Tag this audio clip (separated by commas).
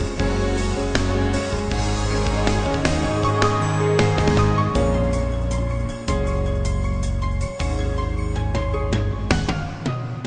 Music, Theme music